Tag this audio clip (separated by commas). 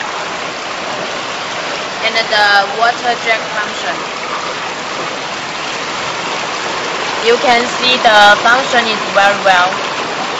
Speech